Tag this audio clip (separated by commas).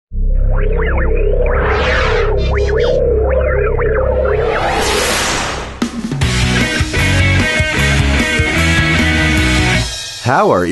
Music